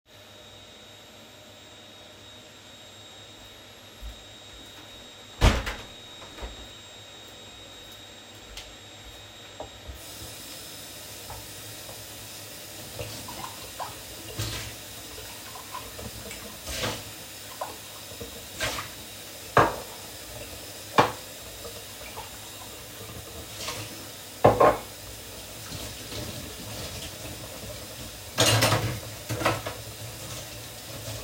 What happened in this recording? I close the window and start washing the dishes. The vacuum cleaner is being used in another room.